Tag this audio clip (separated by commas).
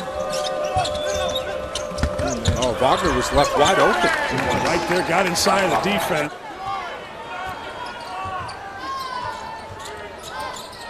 basketball bounce